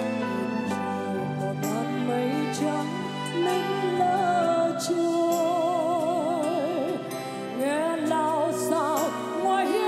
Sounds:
tender music
singing
music

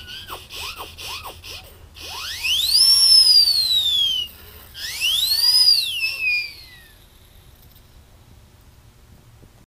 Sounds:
siren

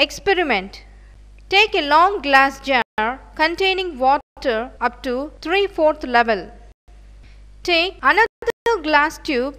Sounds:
speech

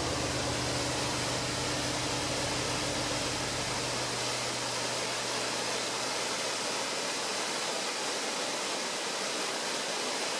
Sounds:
waterfall

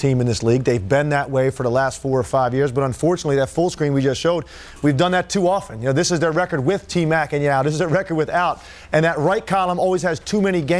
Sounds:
speech

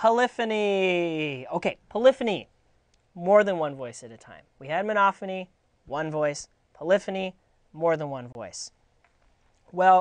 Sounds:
speech

